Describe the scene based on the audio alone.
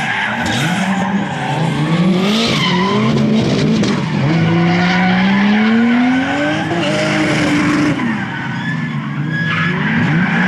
Cars racing and engines sounding loudly